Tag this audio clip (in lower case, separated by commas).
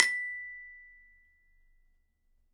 musical instrument, percussion, music, mallet percussion, glockenspiel